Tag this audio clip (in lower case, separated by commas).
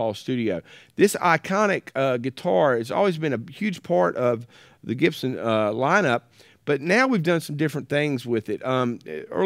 speech